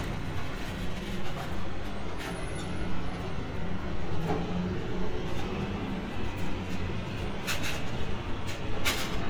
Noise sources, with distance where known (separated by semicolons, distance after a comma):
engine of unclear size, far